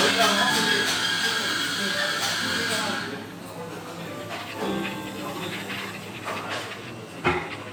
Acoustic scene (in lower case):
cafe